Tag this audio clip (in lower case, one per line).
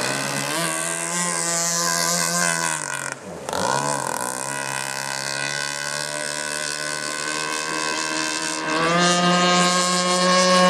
speedboat
vehicle